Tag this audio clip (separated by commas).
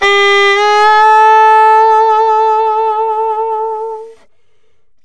Musical instrument, Music, Wind instrument